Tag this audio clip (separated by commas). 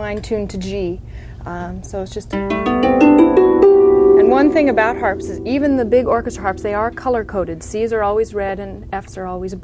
Plucked string instrument, Music, Speech, Musical instrument, Harp